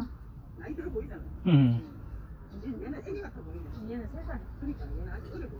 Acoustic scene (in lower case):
park